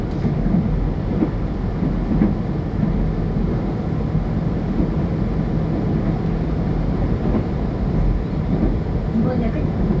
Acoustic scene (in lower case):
subway train